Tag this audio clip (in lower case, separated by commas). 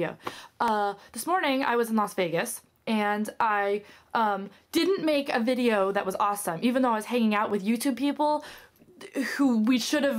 speech